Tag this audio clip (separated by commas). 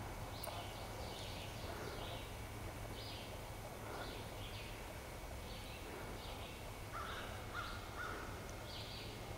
Bird